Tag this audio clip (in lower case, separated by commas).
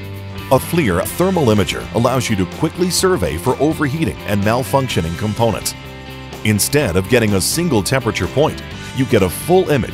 music, speech